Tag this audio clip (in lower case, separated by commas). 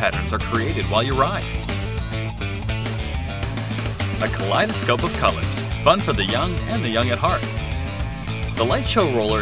music, speech